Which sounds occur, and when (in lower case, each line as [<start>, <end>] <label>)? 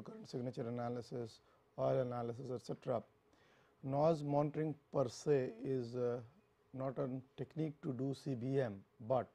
[0.00, 1.35] male speech
[0.00, 9.34] background noise
[1.41, 1.69] breathing
[1.71, 3.02] male speech
[3.28, 3.34] tick
[3.33, 3.69] breathing
[3.81, 4.72] male speech
[4.49, 4.54] tick
[4.91, 6.29] male speech
[6.73, 7.19] male speech
[7.34, 8.81] male speech
[7.46, 7.53] tick
[7.79, 7.83] tick
[8.95, 9.30] male speech